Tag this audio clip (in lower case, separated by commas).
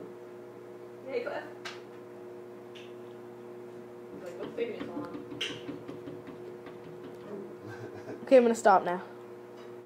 speech, knock